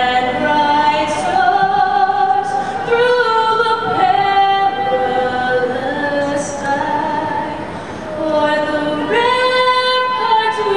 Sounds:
female singing

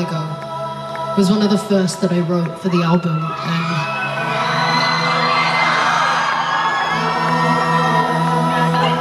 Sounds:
speech, music, woman speaking, narration

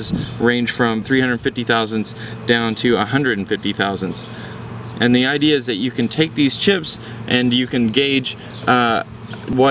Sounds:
speech

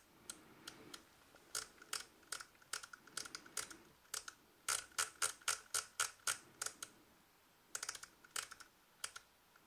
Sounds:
camera

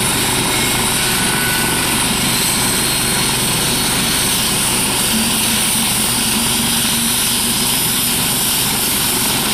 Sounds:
helicopter, aircraft, vehicle, aircraft engine

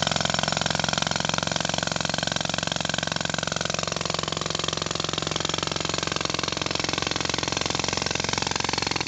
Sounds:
power tool, tools

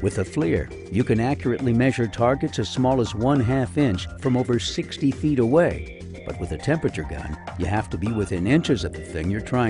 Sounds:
speech, music

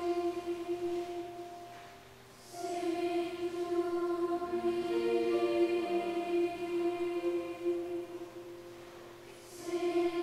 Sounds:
music, tender music

